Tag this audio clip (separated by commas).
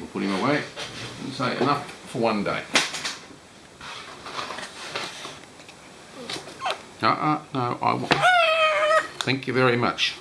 Bird